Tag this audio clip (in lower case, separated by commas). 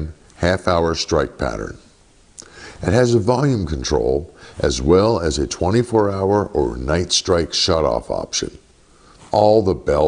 speech